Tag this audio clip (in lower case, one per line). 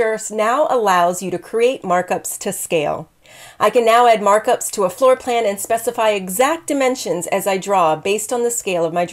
speech